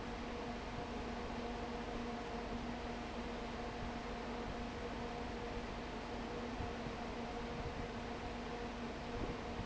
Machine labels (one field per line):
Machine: fan